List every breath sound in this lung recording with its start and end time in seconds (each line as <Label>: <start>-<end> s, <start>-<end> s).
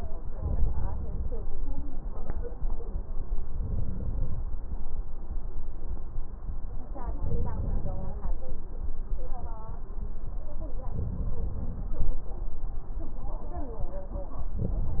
Inhalation: 0.27-1.49 s, 3.60-4.39 s, 7.23-8.37 s, 10.94-12.08 s, 14.57-15.00 s
Crackles: 0.27-1.49 s, 7.23-8.37 s, 14.57-15.00 s